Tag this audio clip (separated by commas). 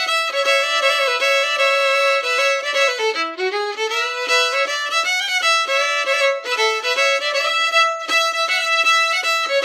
Musical instrument, Music, fiddle